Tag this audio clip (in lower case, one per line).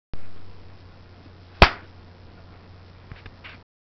hands